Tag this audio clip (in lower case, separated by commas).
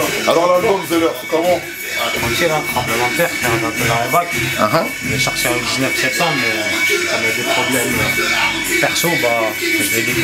speech, music